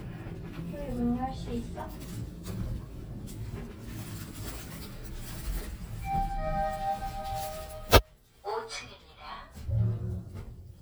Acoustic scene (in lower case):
elevator